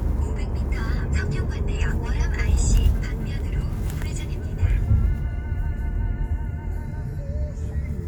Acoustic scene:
car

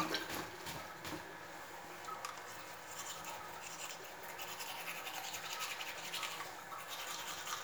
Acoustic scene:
restroom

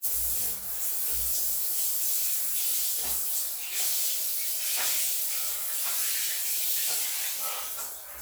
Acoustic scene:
restroom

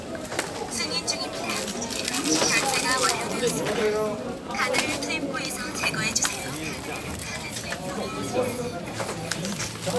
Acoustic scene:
crowded indoor space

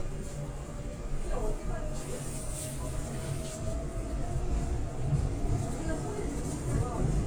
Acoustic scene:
subway train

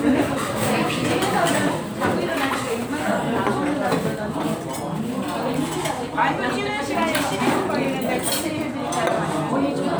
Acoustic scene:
restaurant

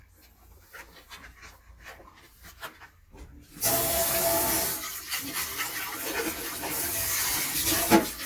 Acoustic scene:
kitchen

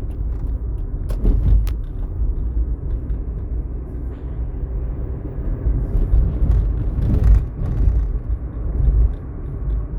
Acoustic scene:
car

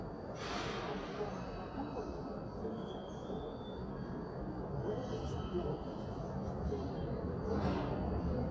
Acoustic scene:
subway station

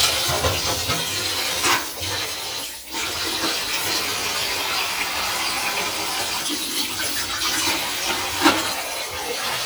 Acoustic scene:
kitchen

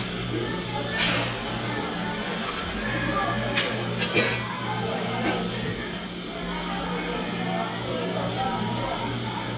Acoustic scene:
cafe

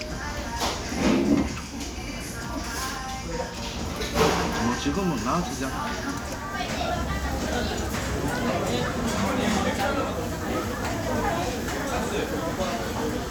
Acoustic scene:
restaurant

